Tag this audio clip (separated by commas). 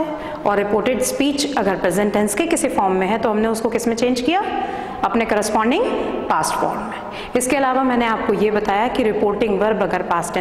woman speaking, Speech